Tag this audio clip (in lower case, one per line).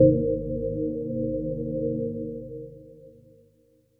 organ
musical instrument
music
keyboard (musical)